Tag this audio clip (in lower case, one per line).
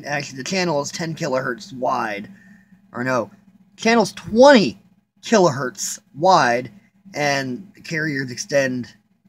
speech